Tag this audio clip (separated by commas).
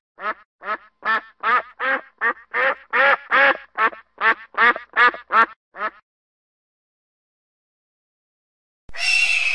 Bird, Goose